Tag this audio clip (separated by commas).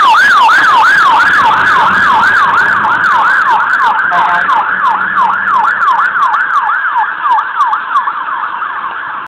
Siren, fire truck (siren), Emergency vehicle